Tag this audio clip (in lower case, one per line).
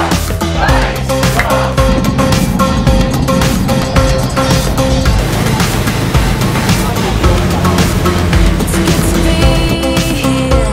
vehicle
music